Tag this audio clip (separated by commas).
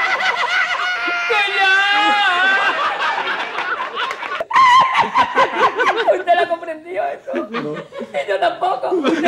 people sniggering